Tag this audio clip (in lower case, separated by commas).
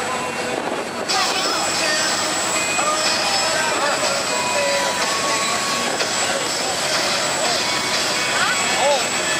vehicle, speech, music, boat